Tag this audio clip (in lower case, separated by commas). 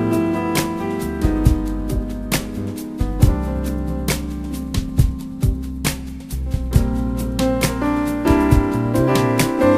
music